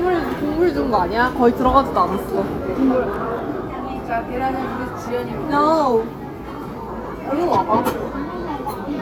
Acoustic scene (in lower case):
restaurant